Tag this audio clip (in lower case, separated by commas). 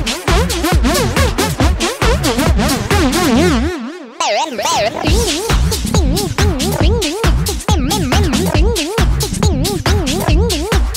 music